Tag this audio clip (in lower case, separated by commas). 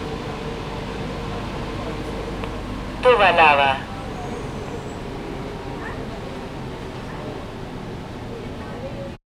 metro, vehicle, rail transport